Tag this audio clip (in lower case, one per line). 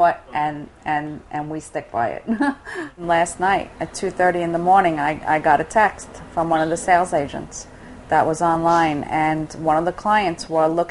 speech